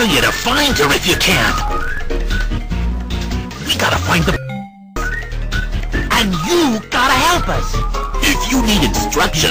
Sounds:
music, speech

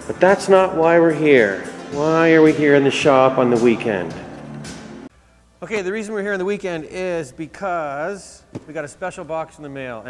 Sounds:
music, speech

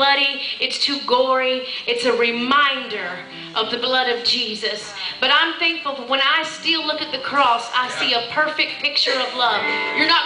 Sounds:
speech, music

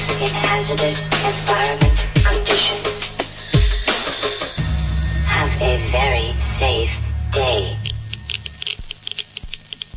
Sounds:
dubstep, music, electronic music

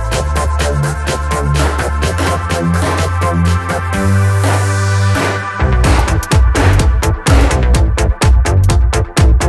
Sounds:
glass, electronica, music

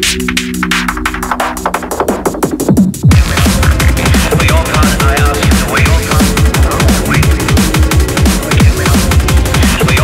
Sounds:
music

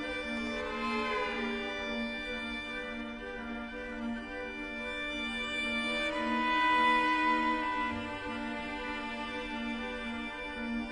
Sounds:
music, musical instrument

